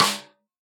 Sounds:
Musical instrument, Drum, Percussion, Music, Snare drum

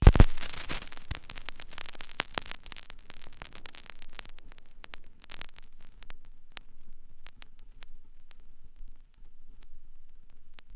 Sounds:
Crackle

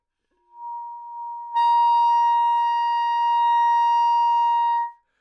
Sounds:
Wind instrument, Musical instrument, Music

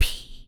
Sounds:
Human voice, Whispering

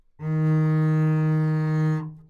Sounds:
Bowed string instrument, Musical instrument, Music

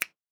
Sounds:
Hands, Finger snapping

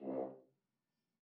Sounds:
Music, Brass instrument, Musical instrument

